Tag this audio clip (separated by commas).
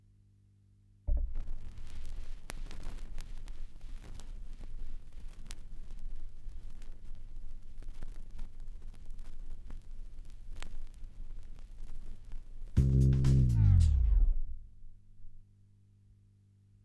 Crackle